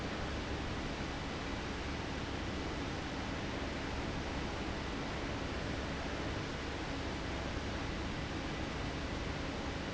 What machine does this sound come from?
fan